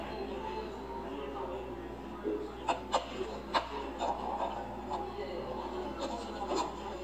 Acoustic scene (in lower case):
cafe